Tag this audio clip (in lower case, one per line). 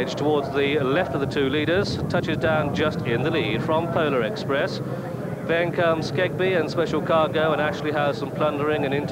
speech